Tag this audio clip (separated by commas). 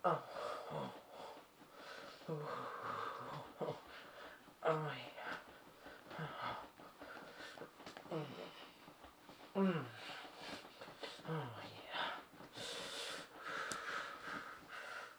Human voice